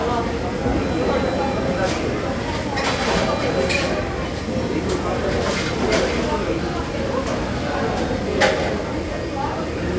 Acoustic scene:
restaurant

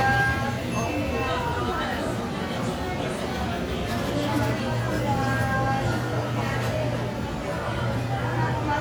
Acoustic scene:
crowded indoor space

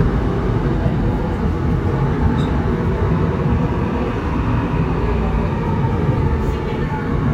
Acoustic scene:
subway train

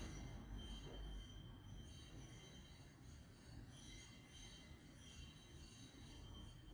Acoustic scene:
street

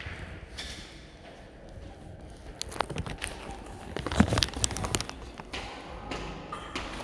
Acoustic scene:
elevator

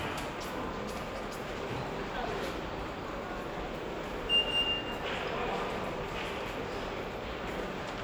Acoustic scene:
subway station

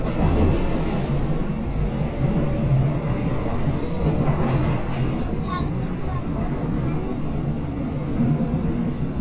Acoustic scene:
subway train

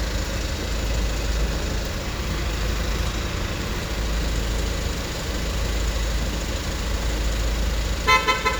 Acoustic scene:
street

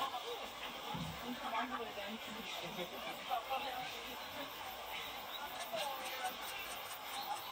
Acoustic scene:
park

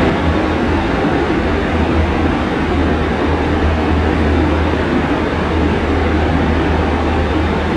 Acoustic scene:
subway train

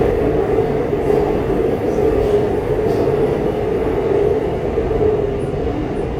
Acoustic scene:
subway train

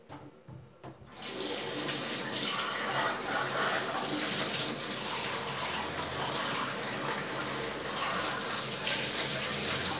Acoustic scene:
kitchen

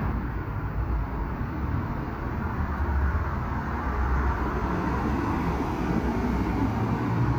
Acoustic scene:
street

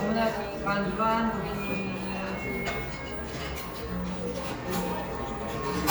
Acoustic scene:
cafe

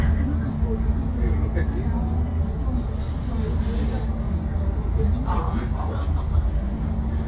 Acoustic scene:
bus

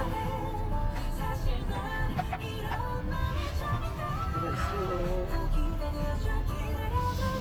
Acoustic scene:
car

